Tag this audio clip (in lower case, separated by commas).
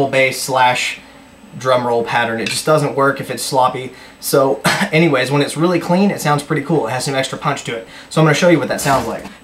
speech